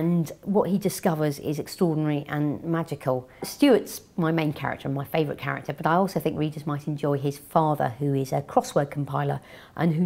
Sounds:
Speech

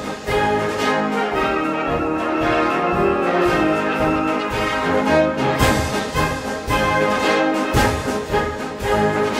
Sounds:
Music

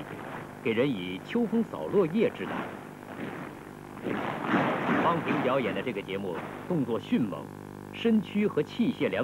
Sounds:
Speech

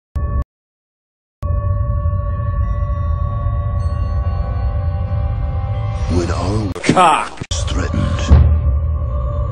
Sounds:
Speech, Music

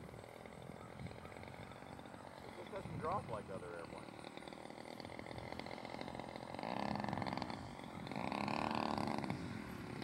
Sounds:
Speech

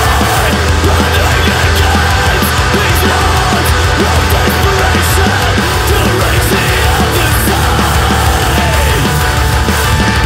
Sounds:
Music, Independent music, Soundtrack music

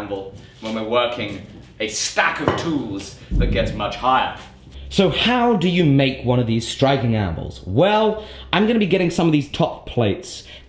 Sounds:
striking pool

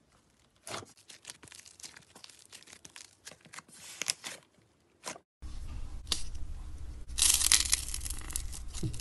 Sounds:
ice cracking

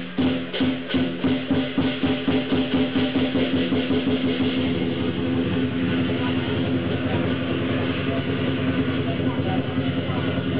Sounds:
Music, Speech

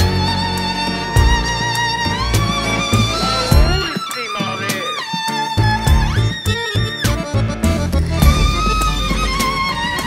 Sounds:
Music

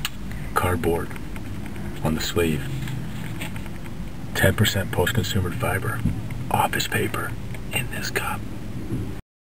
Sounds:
Speech, outside, rural or natural

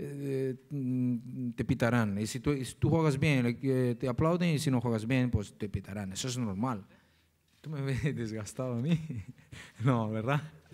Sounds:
Speech

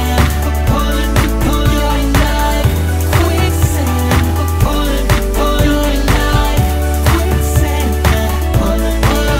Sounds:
Singing, Music, Pop music

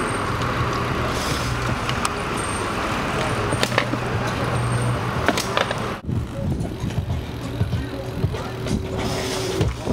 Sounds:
Music, Vehicle, Bicycle

